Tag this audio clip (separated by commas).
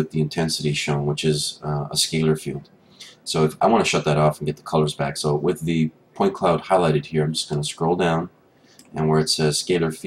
Speech